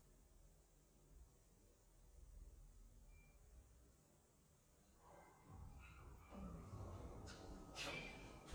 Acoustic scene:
elevator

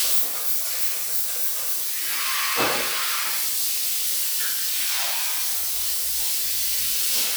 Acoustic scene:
restroom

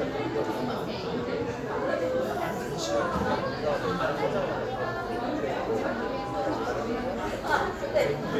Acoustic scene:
crowded indoor space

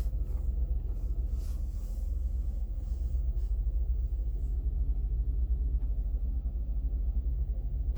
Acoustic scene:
car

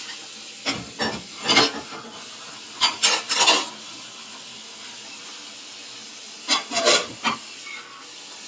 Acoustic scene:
kitchen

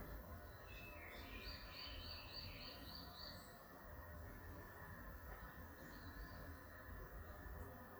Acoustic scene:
park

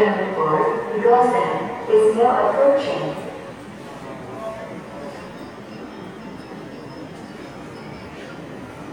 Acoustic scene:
subway station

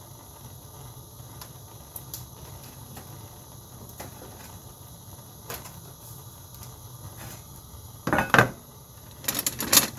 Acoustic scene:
kitchen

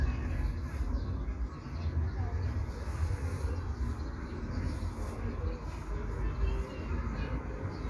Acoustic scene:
park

